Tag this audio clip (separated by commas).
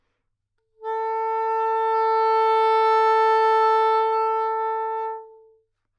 Musical instrument, woodwind instrument, Music